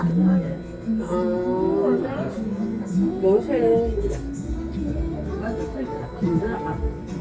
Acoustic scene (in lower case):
crowded indoor space